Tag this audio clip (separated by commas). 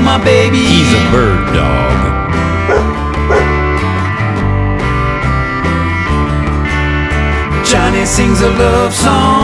pets, Dog, Speech, Bow-wow, Animal, Music